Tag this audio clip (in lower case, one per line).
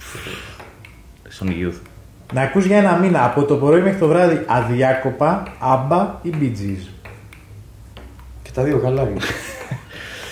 speech